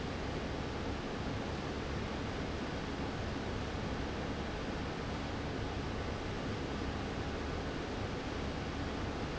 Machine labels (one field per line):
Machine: fan